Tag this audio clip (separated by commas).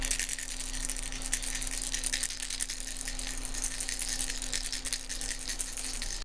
Rattle